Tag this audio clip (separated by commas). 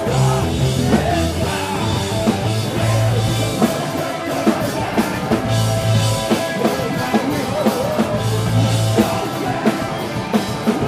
Music